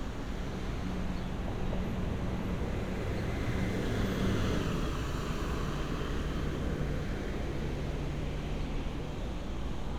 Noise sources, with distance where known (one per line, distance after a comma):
medium-sounding engine, near